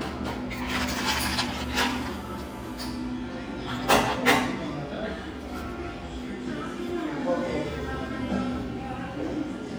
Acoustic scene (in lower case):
cafe